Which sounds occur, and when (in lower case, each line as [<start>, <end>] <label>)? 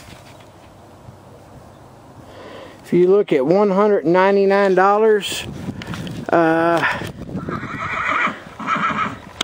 [0.00, 0.42] surface contact
[0.00, 9.43] wind
[0.57, 0.65] surface contact
[2.19, 2.76] breathing
[2.83, 5.44] man speaking
[2.95, 3.04] tick
[5.24, 6.25] wind noise (microphone)
[5.46, 6.27] breathing
[5.78, 5.92] tick
[6.04, 6.12] tick
[6.31, 7.13] human voice
[6.71, 7.97] wind noise (microphone)
[7.27, 8.38] neigh
[8.57, 9.12] neigh
[8.79, 9.24] wind noise (microphone)
[9.36, 9.43] tick